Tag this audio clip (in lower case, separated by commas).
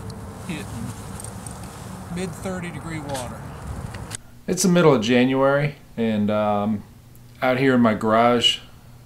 speech